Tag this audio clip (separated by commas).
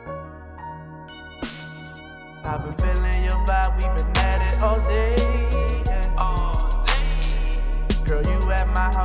Music, Blues